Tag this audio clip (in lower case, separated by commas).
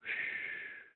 respiratory sounds, breathing